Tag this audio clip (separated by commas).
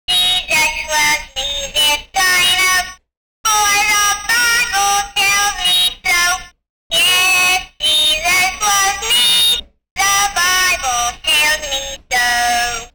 Singing, Human voice